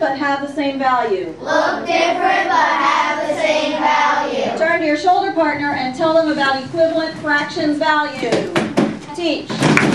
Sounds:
speech, kid speaking

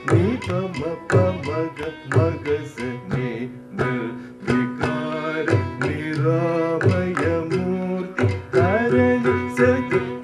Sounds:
tabla, percussion, drum

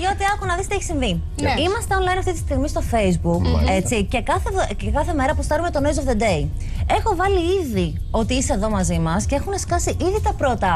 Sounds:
music, speech

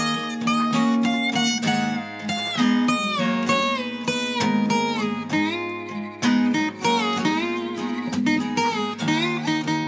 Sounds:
strum, musical instrument, music, guitar

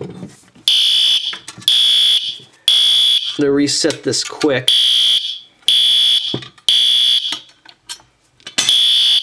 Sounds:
alarm, speech, fire alarm

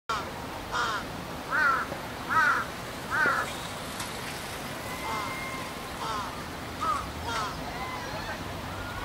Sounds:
crow cawing

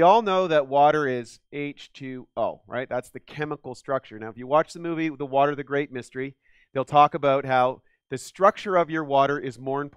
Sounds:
speech

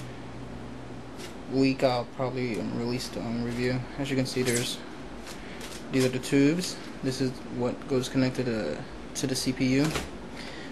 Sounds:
speech

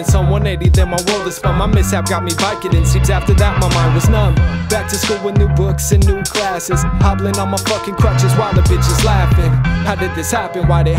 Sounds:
music

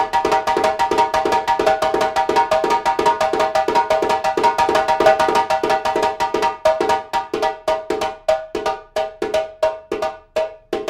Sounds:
playing djembe

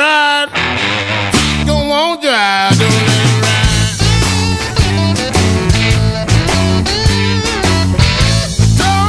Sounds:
music

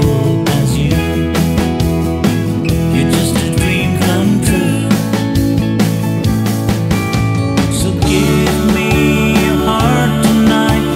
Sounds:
country, music, funk

